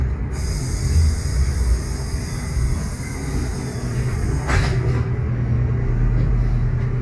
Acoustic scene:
bus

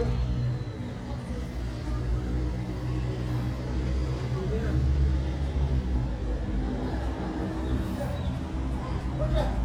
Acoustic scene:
residential area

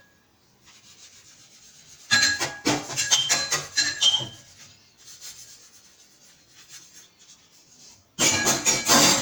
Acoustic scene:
kitchen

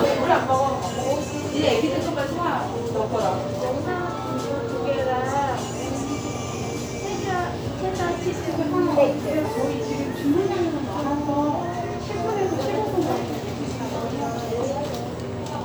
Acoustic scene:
restaurant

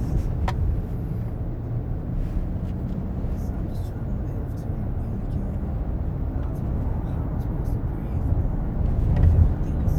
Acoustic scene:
car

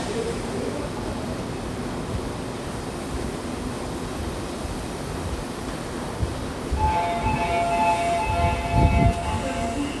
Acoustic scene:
subway station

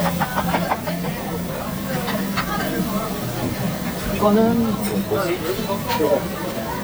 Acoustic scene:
restaurant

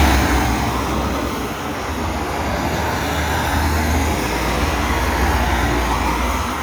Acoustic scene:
street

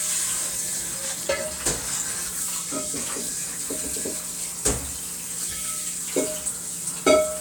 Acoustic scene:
kitchen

